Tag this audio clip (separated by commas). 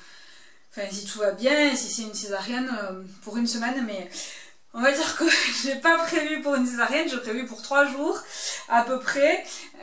Speech